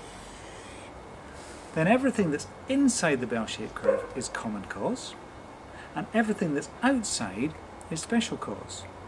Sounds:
speech

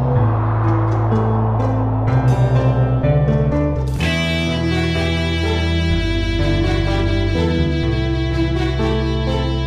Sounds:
music

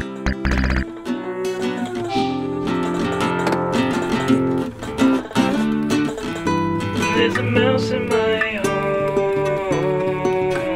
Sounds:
video game music
music
soundtrack music

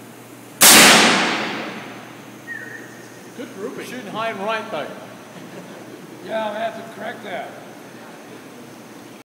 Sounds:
speech

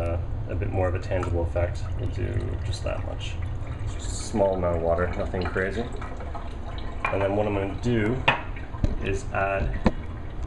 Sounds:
water
sink (filling or washing)
water tap

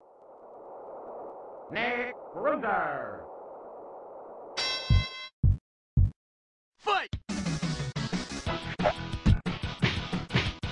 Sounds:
speech

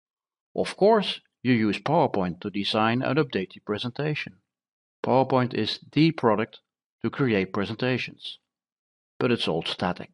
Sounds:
speech

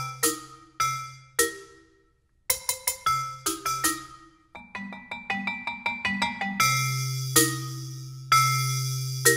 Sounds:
mallet percussion
glockenspiel

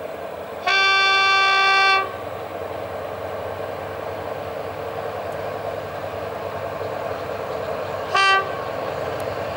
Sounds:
railroad car
train horn
rail transport
train
vehicle

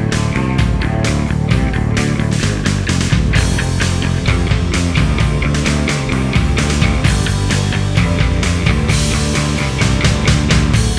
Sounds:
grunge

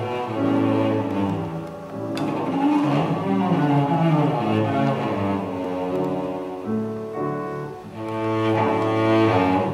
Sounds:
cello
playing cello
bowed string instrument
double bass

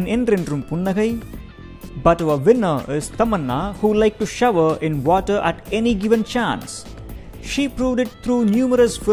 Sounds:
speech
music

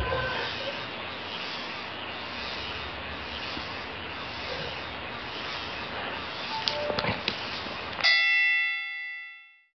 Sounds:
music

